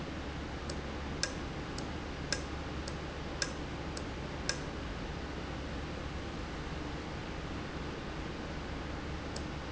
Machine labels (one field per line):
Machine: valve